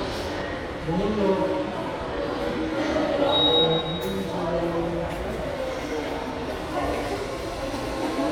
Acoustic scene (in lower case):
subway station